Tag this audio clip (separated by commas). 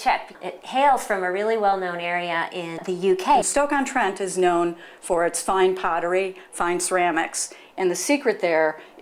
Speech